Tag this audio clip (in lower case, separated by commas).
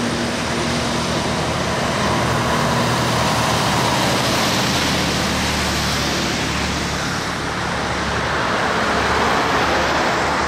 truck, vehicle, outside, urban or man-made, car